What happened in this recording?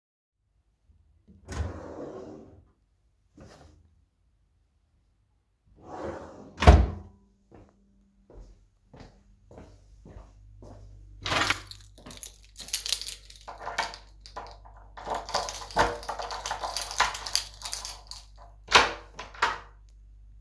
I opend my drawer and grabed a pice of clothing from it, then closed it, then i walked towards my door and grabbed the keys during walking, then i used them on the door and opend it